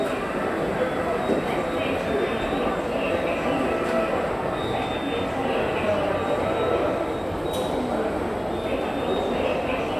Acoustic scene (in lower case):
subway station